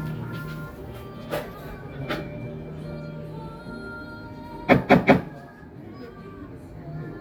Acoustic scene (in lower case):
cafe